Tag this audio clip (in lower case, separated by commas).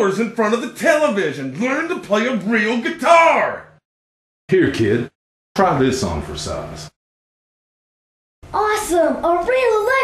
speech